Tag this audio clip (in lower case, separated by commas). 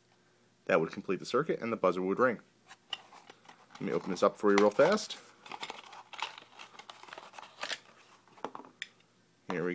speech